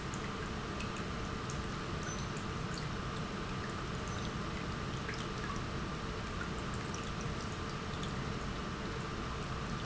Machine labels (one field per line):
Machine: pump